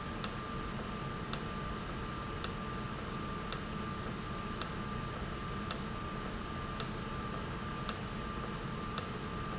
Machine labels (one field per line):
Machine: valve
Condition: normal